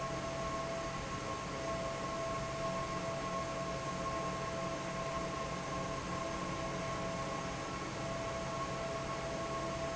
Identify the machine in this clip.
fan